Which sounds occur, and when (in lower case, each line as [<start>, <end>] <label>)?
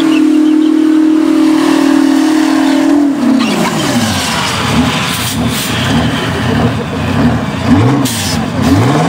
[0.00, 3.61] vroom
[0.00, 9.05] truck
[0.06, 0.20] tire squeal
[0.33, 0.56] tire squeal
[0.63, 0.73] tire squeal
[2.63, 2.82] tire squeal
[3.38, 3.71] tire squeal
[3.42, 5.36] generic impact sounds
[3.79, 4.00] tire squeal
[5.47, 6.68] generic impact sounds
[7.64, 8.32] vroom
[8.03, 8.39] air brake